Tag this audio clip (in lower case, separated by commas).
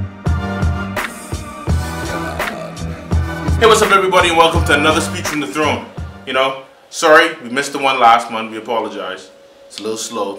man speaking, music, narration, speech